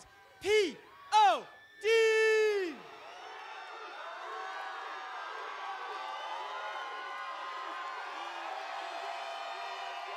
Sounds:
Speech

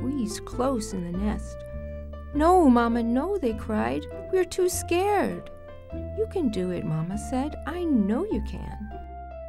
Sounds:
Music, Speech

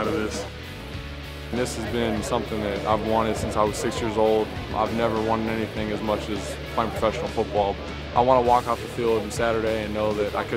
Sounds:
Speech, Music

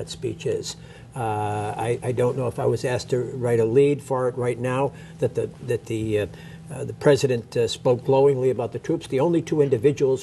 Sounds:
man speaking, Speech, monologue

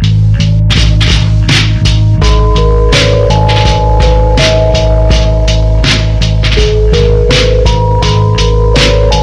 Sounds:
Music

